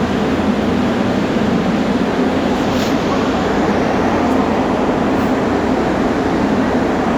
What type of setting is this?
subway station